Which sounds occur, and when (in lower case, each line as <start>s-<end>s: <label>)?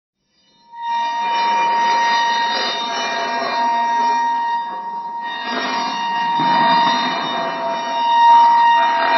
0.3s-9.1s: sound effect